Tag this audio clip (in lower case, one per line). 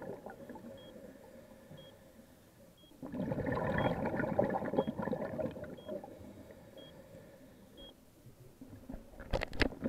scuba diving